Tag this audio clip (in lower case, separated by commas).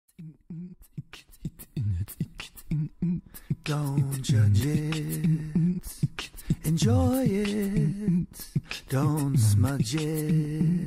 singing, beatboxing